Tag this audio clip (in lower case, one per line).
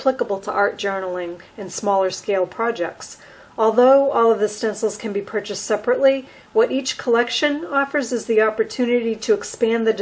speech